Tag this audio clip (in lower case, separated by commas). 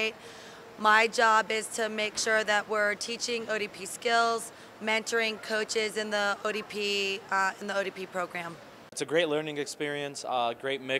speech